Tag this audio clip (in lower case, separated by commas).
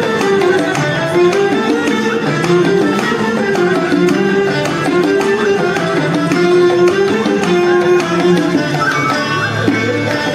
music, traditional music